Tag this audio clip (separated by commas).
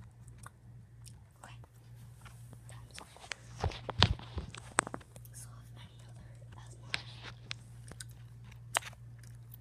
Whispering, Speech, Biting